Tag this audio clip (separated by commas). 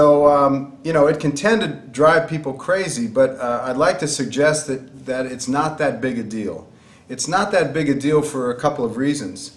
Speech